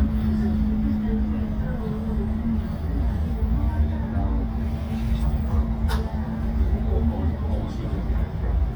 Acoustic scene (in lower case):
bus